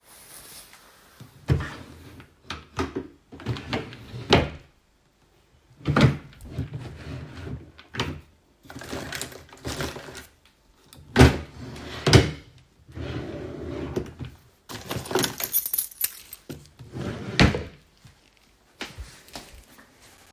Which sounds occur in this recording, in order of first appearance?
wardrobe or drawer, keys